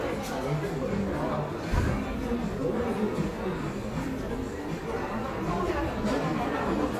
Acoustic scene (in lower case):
crowded indoor space